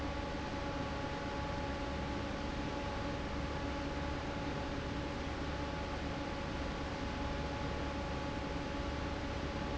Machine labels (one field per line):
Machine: fan